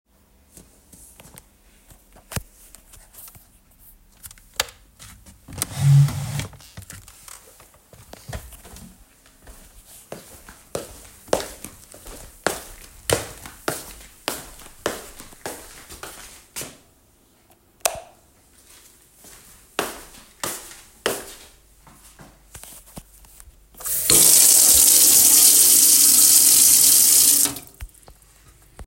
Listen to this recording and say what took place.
I was taking a break from the task that I had finished. I felt thirsty. I stood up, walked all the way to the hall, switched the lights of the kitchen on and drank water.